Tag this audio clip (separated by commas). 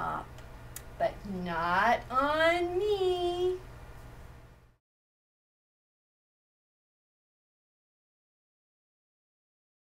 Speech